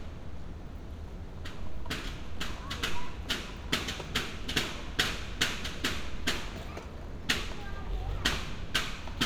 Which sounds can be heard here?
pile driver